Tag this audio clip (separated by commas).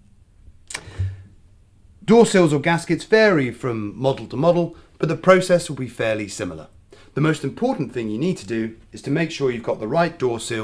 Speech